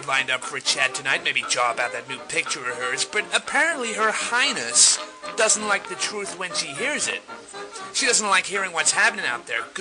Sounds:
music, speech

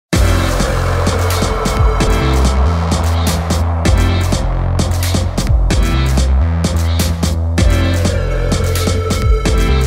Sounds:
electronica, music, sampler

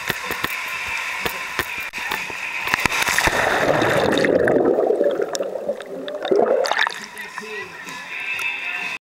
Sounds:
gurgling, speech, music

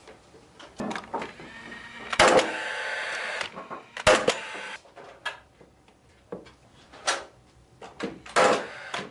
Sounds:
wood, tools

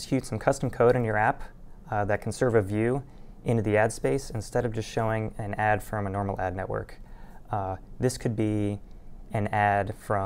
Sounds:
speech

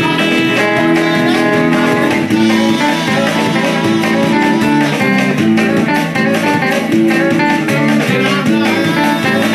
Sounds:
strum, music, plucked string instrument, guitar, electric guitar, musical instrument

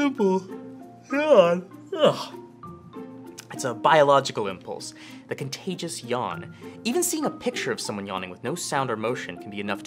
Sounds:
speech, music

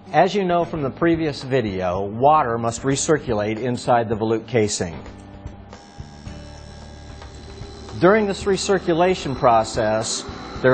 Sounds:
speech, music

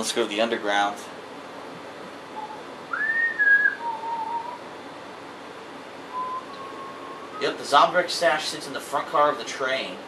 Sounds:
inside a small room, speech

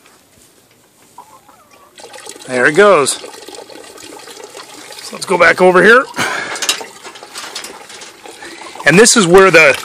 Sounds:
rooster, animal, speech

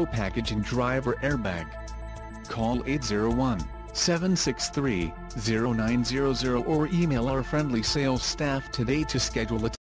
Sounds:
speech, music

